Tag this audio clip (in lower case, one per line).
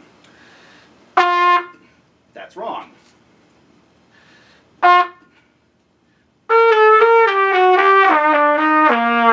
playing cornet